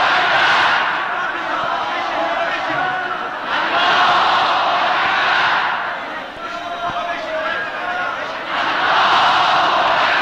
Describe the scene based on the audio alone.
An adult male is speaking, and crowd is cheering and chanting